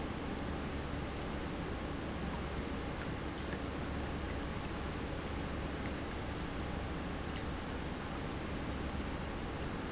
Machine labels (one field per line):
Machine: pump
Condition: normal